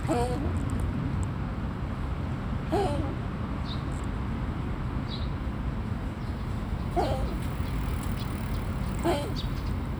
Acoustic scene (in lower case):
residential area